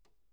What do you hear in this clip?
cupboard opening